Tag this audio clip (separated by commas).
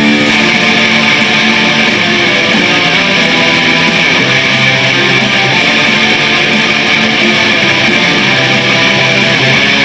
Music